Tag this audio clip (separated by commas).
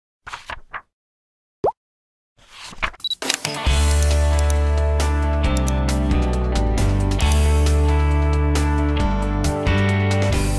Violin, Musical instrument, Music